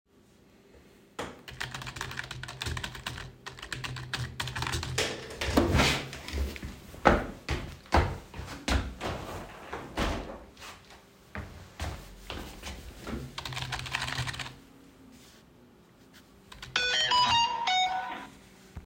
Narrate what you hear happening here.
I sit at my desk and type on the keyboard. I open the window to let fresh air in. While working my phone receives a notification sound.